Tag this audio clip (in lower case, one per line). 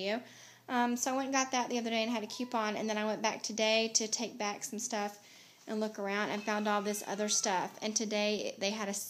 speech